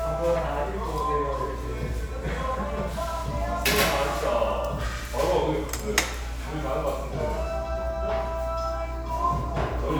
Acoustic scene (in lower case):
restaurant